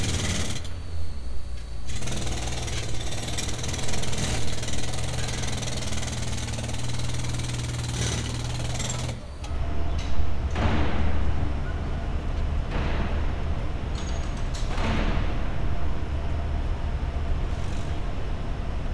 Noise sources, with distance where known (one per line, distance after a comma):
unidentified impact machinery